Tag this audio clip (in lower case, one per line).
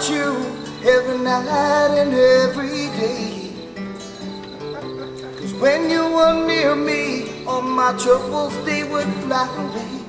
music